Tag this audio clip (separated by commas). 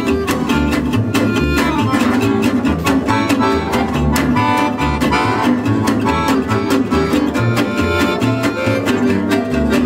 Accordion